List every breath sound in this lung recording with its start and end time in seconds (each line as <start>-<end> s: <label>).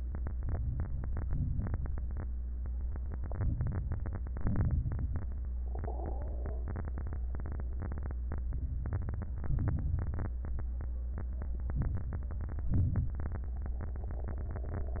0.20-1.20 s: inhalation
1.21-2.20 s: exhalation
3.30-4.35 s: inhalation
4.41-5.40 s: exhalation
8.38-9.37 s: inhalation
9.39-10.38 s: exhalation
11.72-12.71 s: inhalation
12.74-13.74 s: exhalation